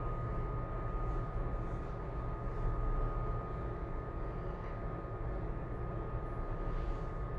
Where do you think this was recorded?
in an elevator